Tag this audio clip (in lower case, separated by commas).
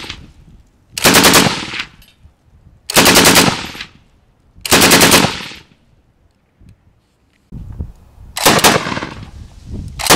machine gun shooting